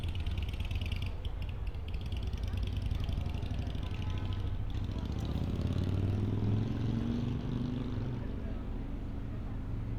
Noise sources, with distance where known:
medium-sounding engine, near
car horn

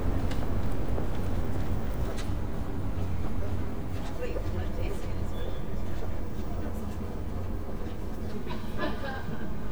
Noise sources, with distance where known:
person or small group talking, near

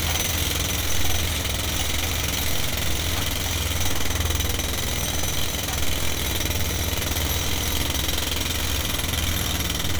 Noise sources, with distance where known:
jackhammer, near

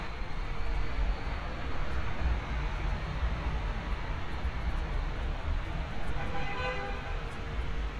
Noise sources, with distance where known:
large-sounding engine, near
car horn, near

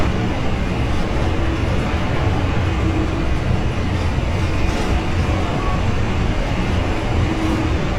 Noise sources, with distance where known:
large-sounding engine, near

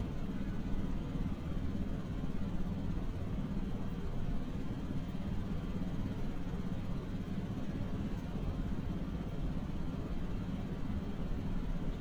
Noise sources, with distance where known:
engine of unclear size, near

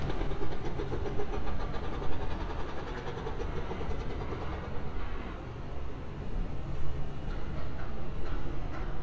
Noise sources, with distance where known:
unidentified impact machinery, far

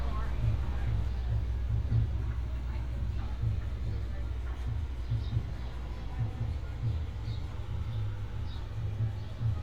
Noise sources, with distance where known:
person or small group talking, far

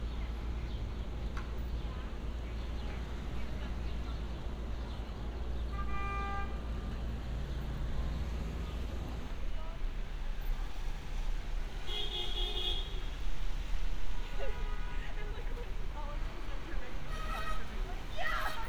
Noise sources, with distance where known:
car horn
person or small group talking

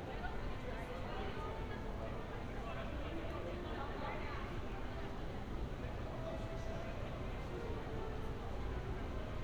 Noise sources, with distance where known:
person or small group talking

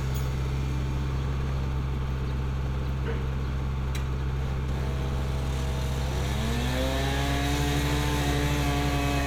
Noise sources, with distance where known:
unidentified powered saw, near

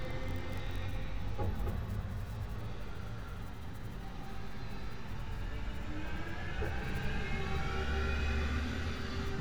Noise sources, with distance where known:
medium-sounding engine, near

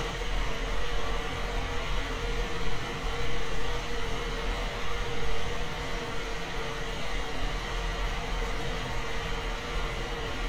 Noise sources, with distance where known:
engine of unclear size, near

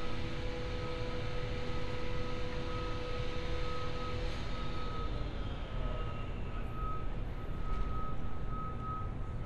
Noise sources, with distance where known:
small or medium rotating saw
reverse beeper, far

